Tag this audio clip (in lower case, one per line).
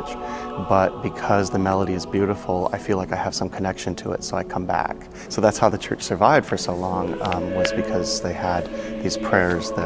speech
music